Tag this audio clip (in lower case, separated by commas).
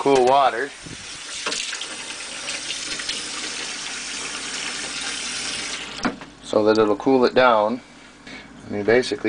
speech, water tap